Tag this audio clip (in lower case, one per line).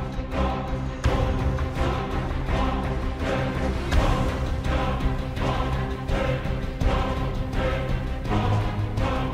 music